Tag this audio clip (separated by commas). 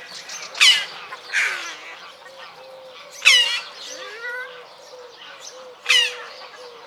Animal, Wild animals, Bird